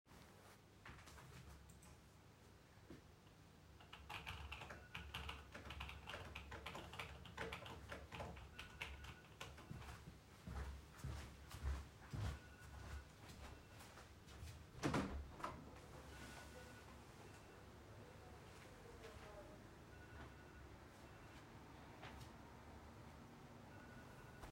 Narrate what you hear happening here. While typing on the keyboard my phone started ringing in the background. I stood up and walked to the window. I opened the window and outside street noise became audible.